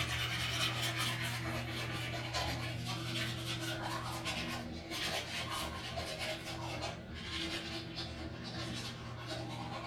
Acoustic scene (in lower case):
restroom